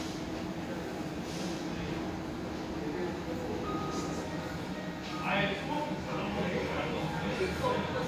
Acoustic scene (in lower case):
cafe